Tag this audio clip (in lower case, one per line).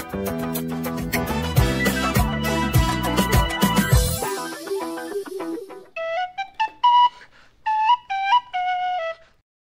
music